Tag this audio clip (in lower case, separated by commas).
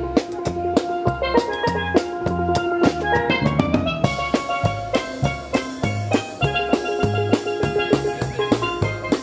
playing steelpan